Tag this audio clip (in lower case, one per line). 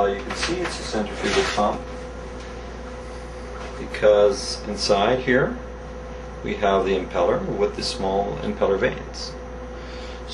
speech